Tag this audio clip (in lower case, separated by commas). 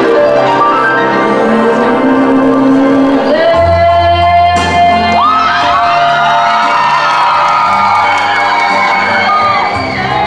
female singing, music